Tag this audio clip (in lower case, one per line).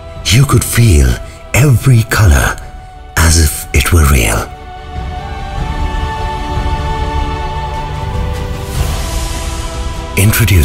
speech
music